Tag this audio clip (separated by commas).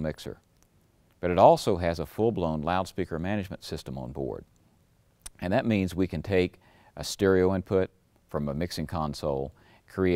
Speech